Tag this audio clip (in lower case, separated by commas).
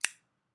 home sounds, scissors